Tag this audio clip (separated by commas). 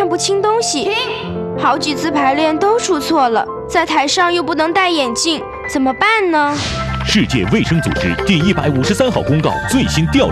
Music, Speech